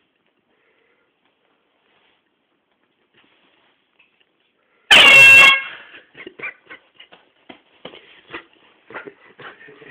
Silence then all of a sudden a loud honk occurs followed by a man laughing in response